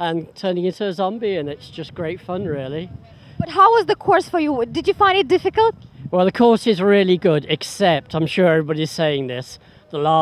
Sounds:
Speech

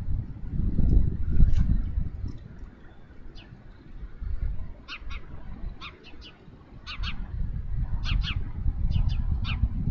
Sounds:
Rustling leaves

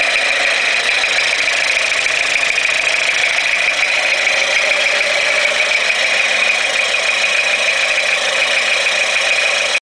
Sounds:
Medium engine (mid frequency), Idling, Engine

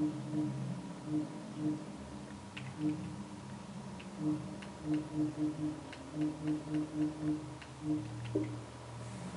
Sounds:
Television

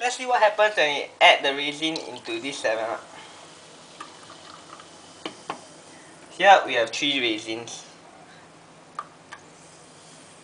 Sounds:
Speech, Water, Liquid

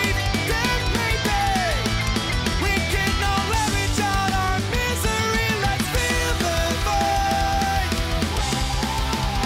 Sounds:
Music

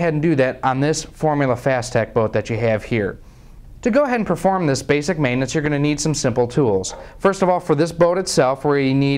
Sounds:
Speech

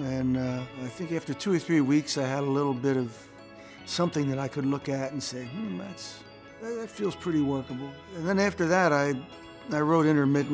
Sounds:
Speech, Music

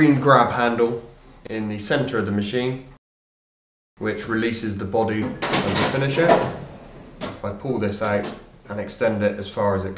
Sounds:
Speech

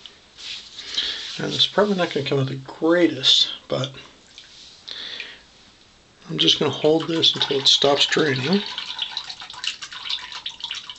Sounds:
inside a small room, Speech, Water tap

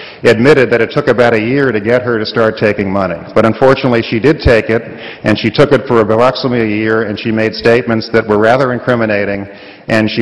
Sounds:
Speech, Narration, Male speech

